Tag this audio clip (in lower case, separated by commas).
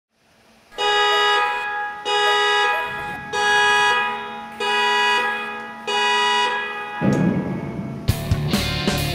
music